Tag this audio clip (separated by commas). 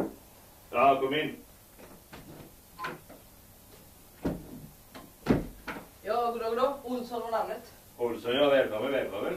Cupboard open or close, Speech, Television